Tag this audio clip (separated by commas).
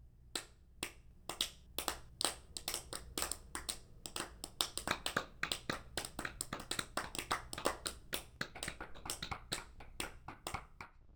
Clapping, Hands